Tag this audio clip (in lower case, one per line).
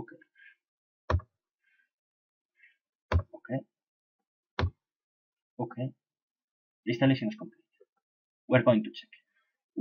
inside a small room
speech